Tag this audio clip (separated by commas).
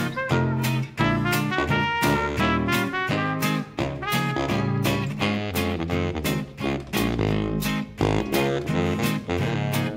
Music